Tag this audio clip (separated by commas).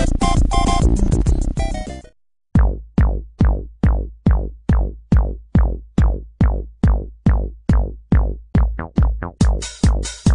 outside, urban or man-made, Music